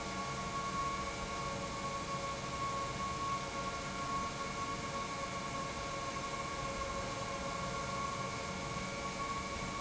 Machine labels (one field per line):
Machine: pump